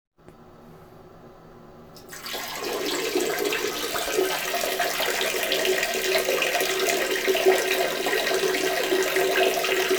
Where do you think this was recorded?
in a restroom